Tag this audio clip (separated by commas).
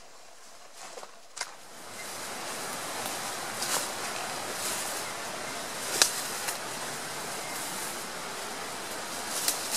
Rustling leaves, wind rustling leaves, Animal